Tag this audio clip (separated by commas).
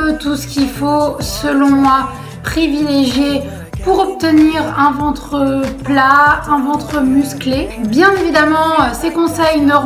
Music, Speech